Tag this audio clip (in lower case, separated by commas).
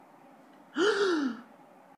breathing, respiratory sounds